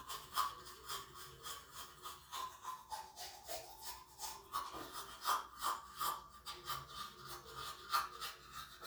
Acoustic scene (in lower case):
restroom